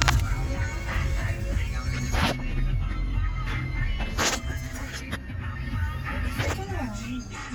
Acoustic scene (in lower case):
car